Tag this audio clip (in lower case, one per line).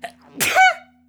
respiratory sounds
sneeze